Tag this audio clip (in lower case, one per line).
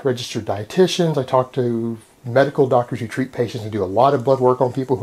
speech